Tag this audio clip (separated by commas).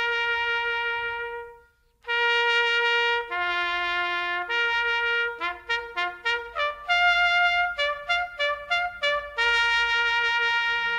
playing bugle